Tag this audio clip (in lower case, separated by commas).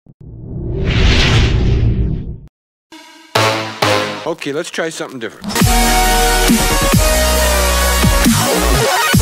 speech, music